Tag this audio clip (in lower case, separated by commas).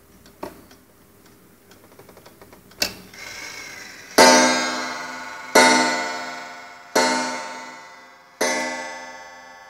clock